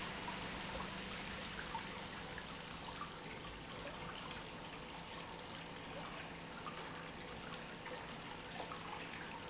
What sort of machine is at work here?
pump